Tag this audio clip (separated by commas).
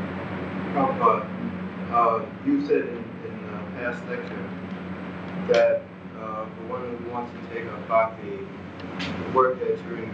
Speech